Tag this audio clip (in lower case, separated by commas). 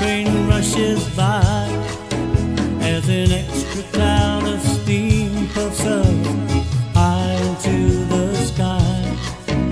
music